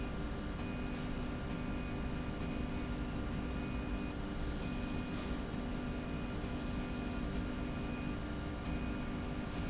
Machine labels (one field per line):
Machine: slide rail